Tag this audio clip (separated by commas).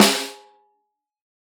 Percussion, Music, Musical instrument, Drum, Snare drum